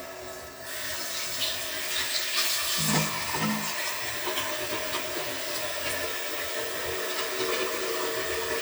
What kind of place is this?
restroom